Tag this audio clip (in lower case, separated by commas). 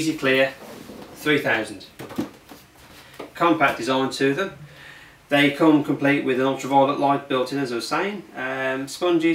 speech